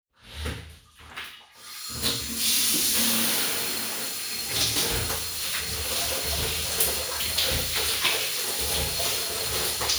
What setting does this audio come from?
restroom